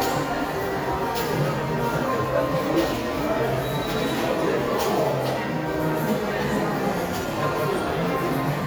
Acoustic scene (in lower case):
crowded indoor space